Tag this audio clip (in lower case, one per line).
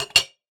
glass
clink